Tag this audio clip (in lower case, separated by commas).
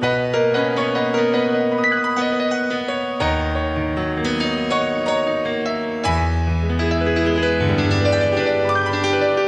electric piano, piano, keyboard (musical)